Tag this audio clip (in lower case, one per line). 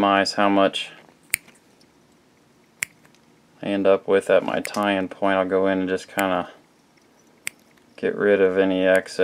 speech